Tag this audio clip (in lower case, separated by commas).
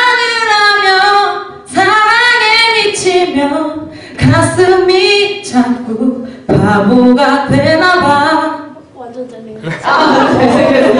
speech